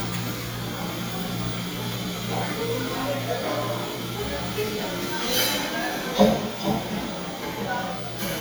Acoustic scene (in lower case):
cafe